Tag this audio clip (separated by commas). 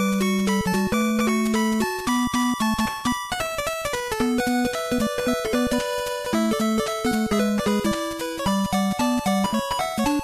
Music